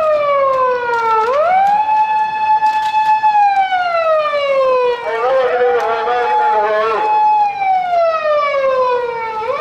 An emergency siren with a man talking on a loud speaker